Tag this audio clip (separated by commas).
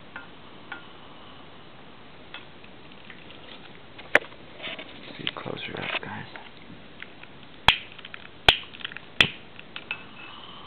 Speech